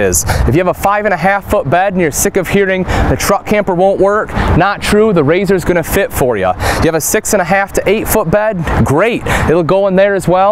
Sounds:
Speech

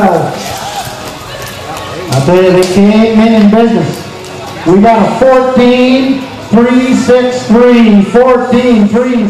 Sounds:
Speech

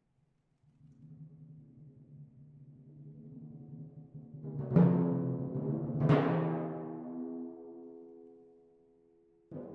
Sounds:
Timpani, Music

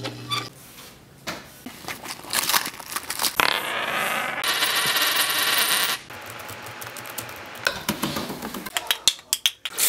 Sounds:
Keys jangling

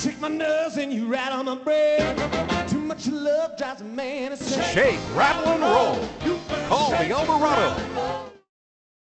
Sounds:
Music

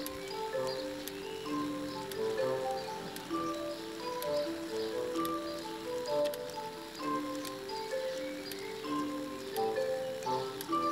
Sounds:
Music, Tick

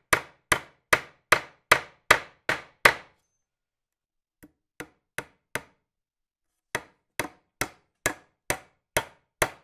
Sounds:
hammering nails

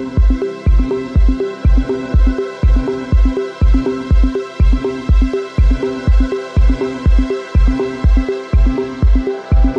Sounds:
Electronica, Music

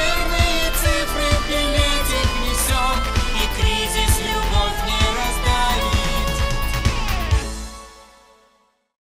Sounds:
Female singing, Music

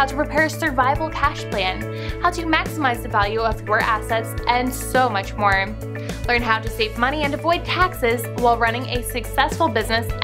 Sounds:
Music, Speech

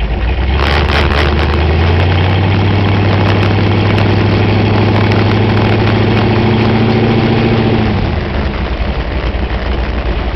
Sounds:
Car, Vehicle, Motor vehicle (road)

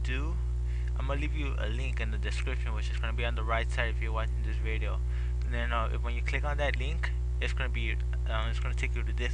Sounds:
Speech

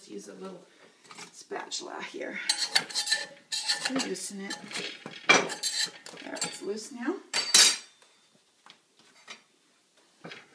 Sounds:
eating with cutlery, silverware

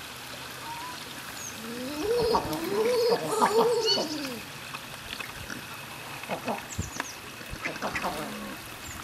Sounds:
Duck, Bird

